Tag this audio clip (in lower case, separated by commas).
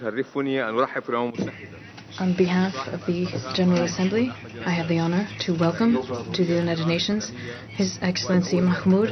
speech, woman speaking, man speaking